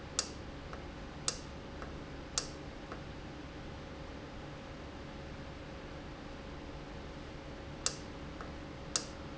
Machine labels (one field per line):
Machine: valve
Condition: normal